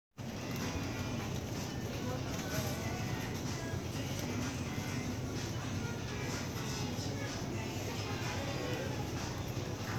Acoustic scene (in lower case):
crowded indoor space